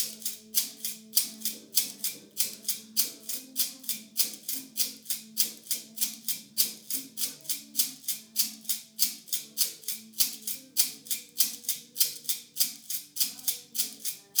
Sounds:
rattle (instrument)
musical instrument
music
percussion

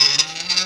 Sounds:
squeak

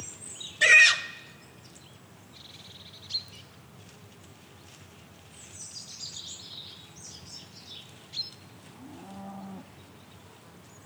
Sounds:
livestock
animal

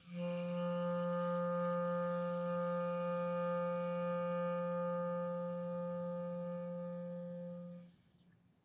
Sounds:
music
musical instrument
wind instrument

